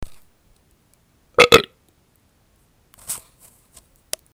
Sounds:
eructation

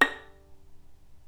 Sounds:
Bowed string instrument, Musical instrument, Music

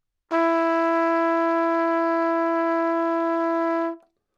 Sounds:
Music, Trumpet, Musical instrument, Brass instrument

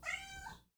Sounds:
Animal, Cat, Meow, Domestic animals

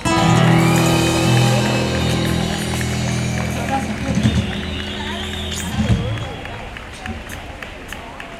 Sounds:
Applause, Human group actions

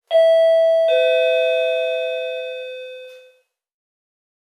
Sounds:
Doorbell, Door, Alarm, Domestic sounds

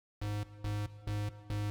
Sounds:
Alarm

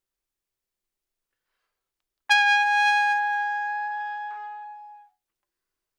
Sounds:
Brass instrument, Trumpet, Musical instrument, Music

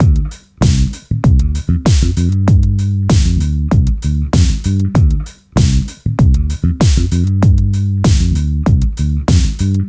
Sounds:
Bass guitar, Guitar, Music, Musical instrument, Plucked string instrument

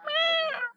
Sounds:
pets, Cat, Animal, Meow

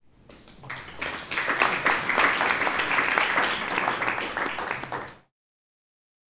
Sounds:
Applause, Human group actions

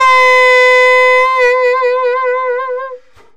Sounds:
Wind instrument, Musical instrument, Music

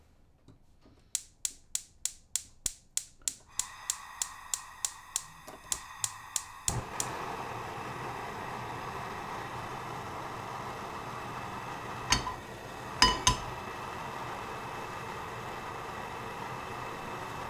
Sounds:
Fire

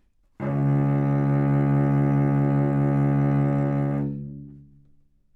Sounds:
Bowed string instrument, Musical instrument, Music

